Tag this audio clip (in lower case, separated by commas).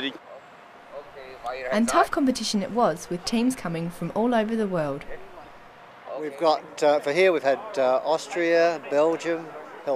speech